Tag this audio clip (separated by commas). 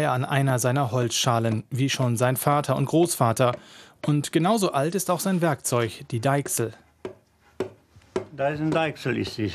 Speech